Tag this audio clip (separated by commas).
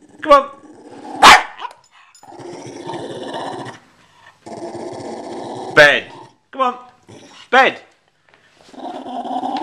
Animal, Dog, Speech, pets, Growling, Bow-wow